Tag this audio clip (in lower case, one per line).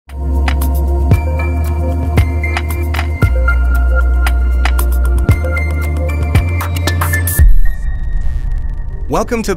speech
music